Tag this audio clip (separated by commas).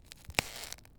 Crack